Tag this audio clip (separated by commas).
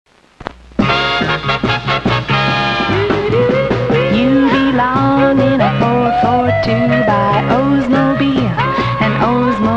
Music